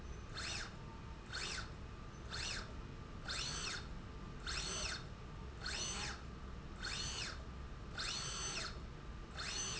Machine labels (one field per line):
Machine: slide rail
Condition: normal